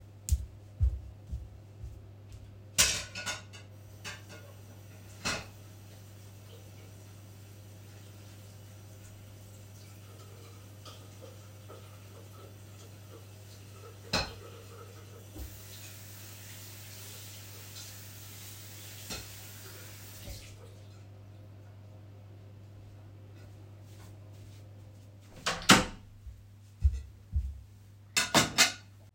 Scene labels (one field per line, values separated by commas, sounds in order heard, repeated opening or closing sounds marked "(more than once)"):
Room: bedroom, bathroom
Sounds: footsteps, cutlery and dishes, running water, door